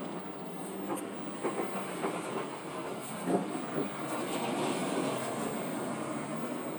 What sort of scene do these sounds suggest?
bus